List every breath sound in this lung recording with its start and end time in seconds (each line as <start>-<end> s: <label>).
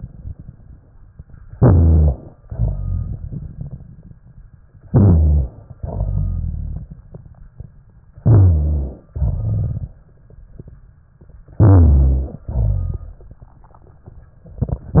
1.49-2.42 s: inhalation
2.45-4.56 s: exhalation
4.83-5.82 s: inhalation
5.81-7.90 s: exhalation
8.10-9.11 s: inhalation
9.13-10.87 s: exhalation
11.54-12.45 s: inhalation
12.46-14.19 s: exhalation